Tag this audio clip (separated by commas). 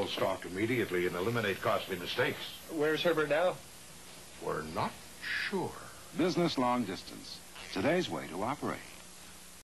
Speech